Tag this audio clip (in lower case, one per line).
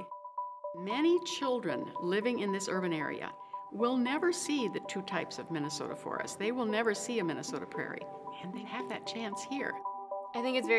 speech
music